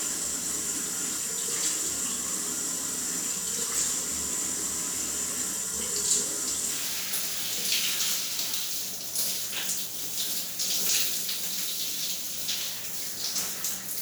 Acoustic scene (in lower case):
restroom